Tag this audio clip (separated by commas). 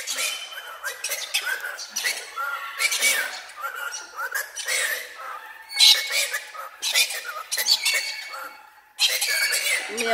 parrot talking